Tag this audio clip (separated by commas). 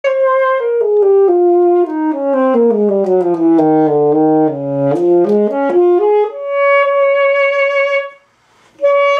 Saxophone, Musical instrument, Music, Brass instrument